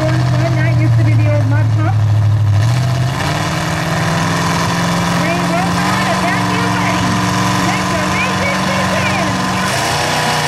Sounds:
Speech

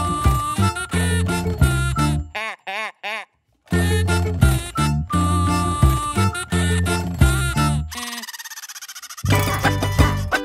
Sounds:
Funny music, Music

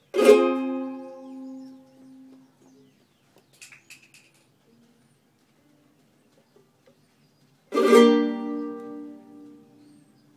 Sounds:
Music

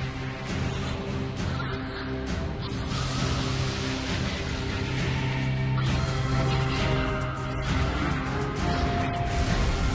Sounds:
Music

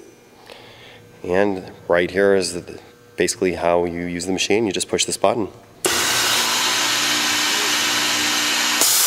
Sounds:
Speech

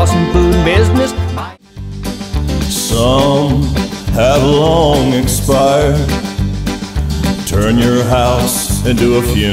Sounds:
Sampler, Country, Music

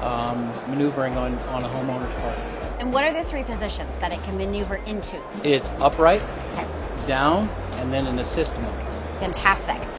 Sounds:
Music, Speech

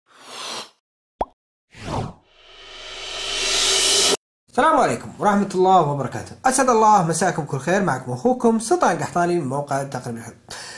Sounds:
Speech

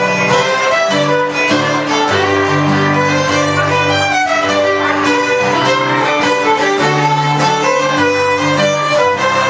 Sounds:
fiddle, Music, Musical instrument

